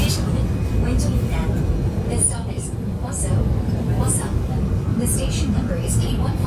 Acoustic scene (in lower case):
subway train